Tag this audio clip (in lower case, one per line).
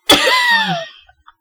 laughter
human voice